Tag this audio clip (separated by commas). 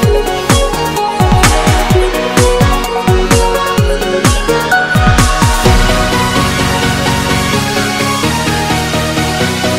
Music